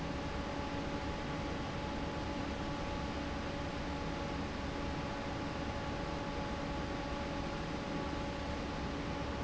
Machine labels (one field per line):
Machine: fan